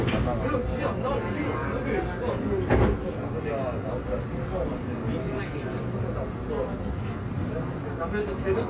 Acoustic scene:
subway train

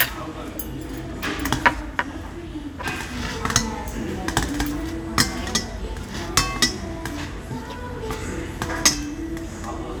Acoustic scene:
restaurant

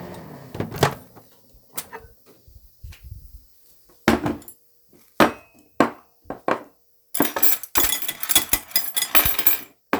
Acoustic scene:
kitchen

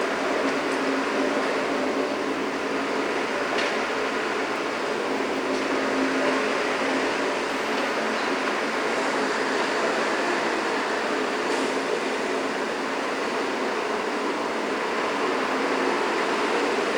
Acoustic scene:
street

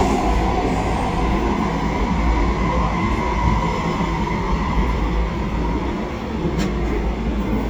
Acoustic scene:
subway train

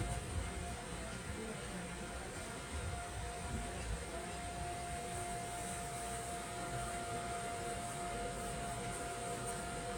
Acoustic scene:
subway train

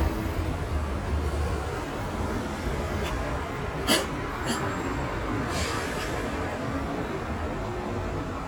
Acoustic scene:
residential area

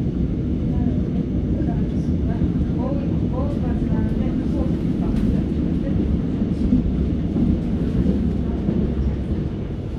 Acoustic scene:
subway train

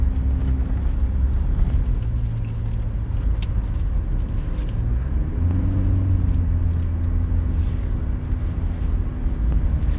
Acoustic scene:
car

